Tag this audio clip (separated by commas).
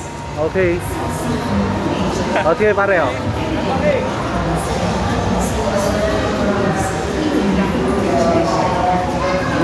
Speech